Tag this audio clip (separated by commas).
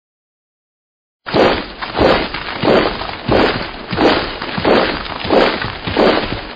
Breaking